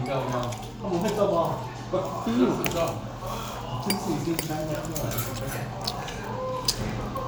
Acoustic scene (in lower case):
restaurant